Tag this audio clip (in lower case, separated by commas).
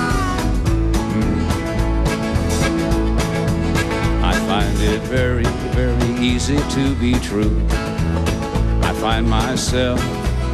music